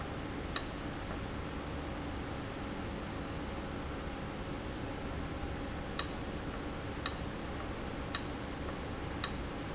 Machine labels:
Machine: valve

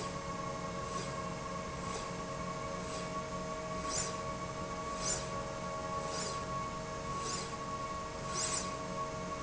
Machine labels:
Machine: slide rail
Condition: normal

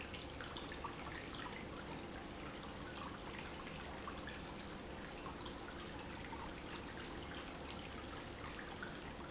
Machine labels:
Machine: pump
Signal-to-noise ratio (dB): 6 dB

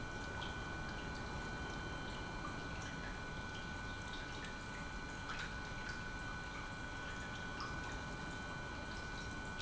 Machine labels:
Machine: pump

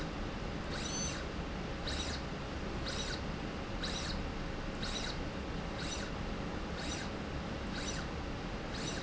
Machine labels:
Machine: slide rail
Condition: abnormal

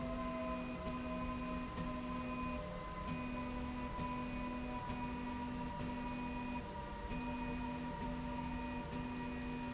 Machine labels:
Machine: slide rail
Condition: normal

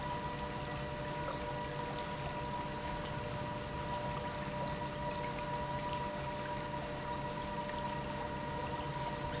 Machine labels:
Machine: pump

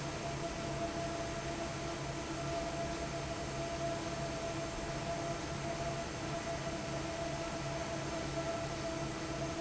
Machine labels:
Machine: fan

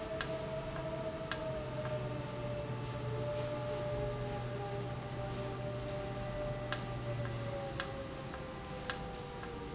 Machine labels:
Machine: valve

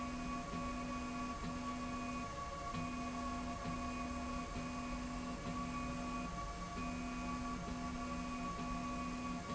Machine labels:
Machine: slide rail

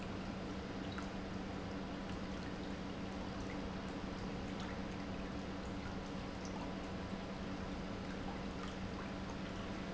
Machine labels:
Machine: pump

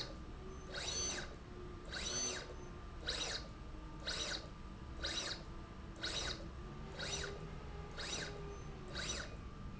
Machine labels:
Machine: slide rail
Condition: abnormal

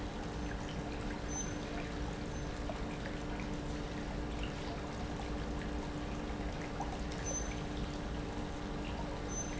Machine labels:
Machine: pump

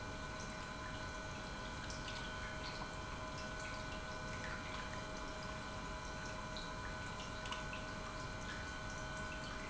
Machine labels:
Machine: pump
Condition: normal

